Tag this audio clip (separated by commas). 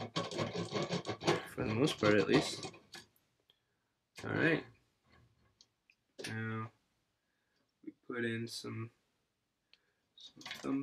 Speech